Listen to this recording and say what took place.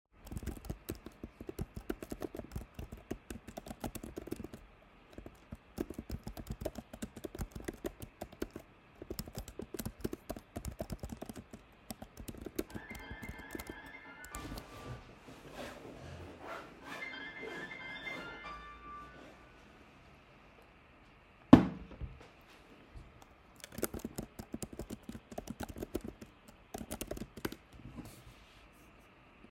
I started typing on the keyboard, a phone call came I bent down opened the bag and searched for the phone. I declined the call and put the phone on the office table, then I continued typing.